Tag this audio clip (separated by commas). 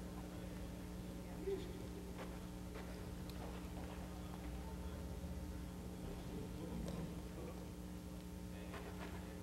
Animal